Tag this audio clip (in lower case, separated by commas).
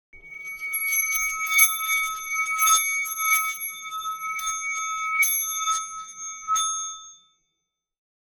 musical instrument, music